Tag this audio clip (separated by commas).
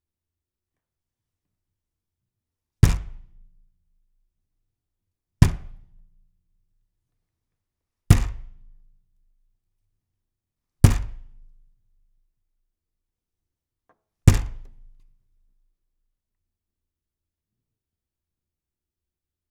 Domestic sounds, Knock, Door